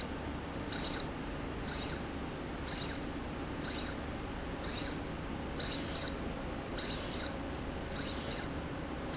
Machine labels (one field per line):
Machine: slide rail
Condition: abnormal